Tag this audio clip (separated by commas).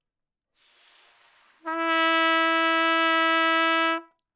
Music, Musical instrument, Brass instrument, Trumpet